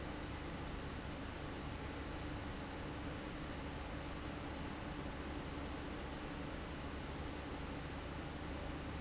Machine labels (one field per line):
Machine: fan